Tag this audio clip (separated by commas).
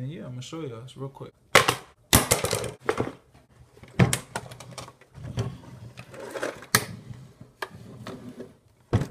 Speech